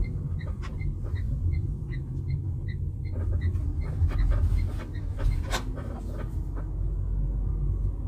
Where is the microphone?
in a car